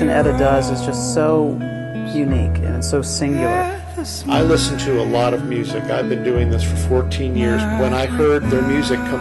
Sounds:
music
speech

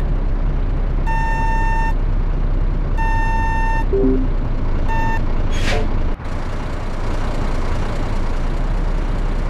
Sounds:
reversing beeps
vehicle

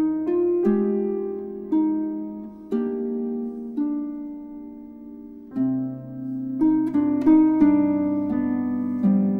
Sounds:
soundtrack music
music

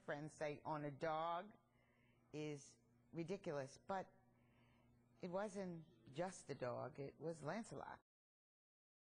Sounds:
speech

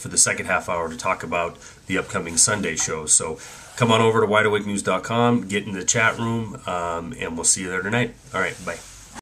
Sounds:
speech

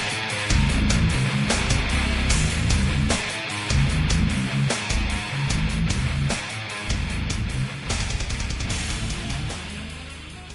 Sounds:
music

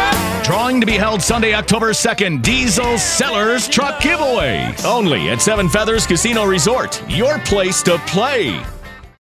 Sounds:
speech
music

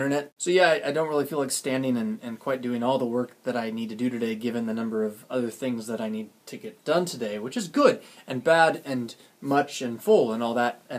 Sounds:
speech

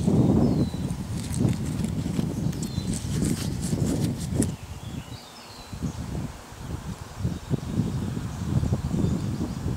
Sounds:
animal
rustling leaves

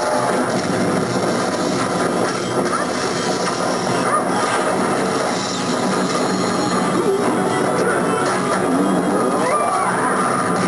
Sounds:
crash
speech
music

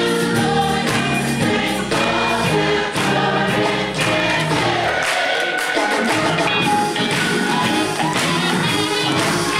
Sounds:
choir
music

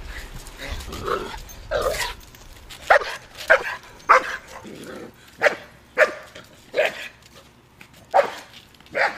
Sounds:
speech
animal
yip
pets
dog
bow-wow

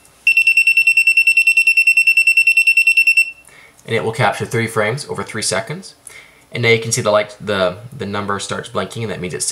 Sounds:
speech
buzzer

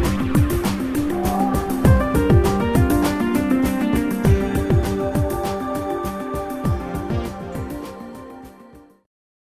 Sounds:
music

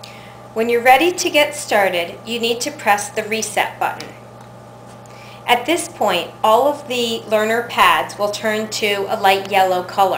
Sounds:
woman speaking
speech

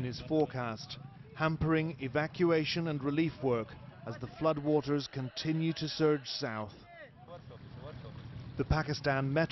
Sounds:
speech

